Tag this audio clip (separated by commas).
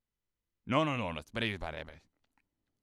Speech, Male speech, Human voice